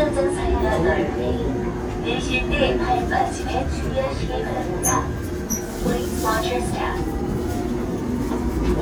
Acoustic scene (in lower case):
subway train